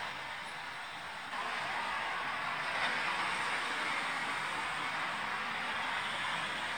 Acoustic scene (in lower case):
street